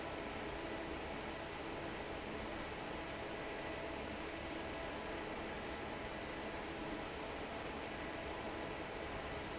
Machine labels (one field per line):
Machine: fan